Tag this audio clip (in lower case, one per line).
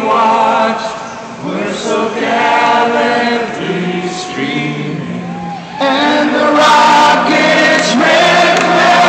male singing
choir
music